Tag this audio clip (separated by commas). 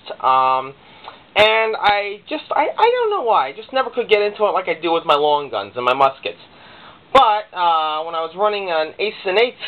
Speech